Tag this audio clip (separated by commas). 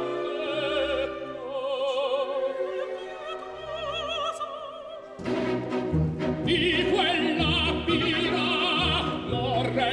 Opera, Music